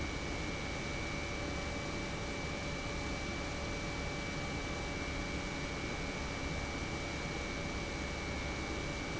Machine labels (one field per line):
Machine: pump